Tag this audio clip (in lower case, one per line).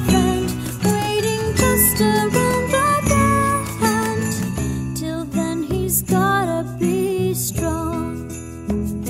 jingle